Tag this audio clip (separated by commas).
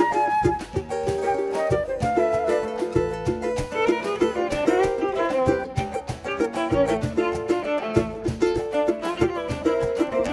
Music, Tender music, Soul music, Middle Eastern music